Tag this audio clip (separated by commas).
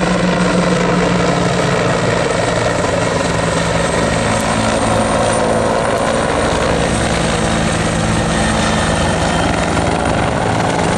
Helicopter, Vehicle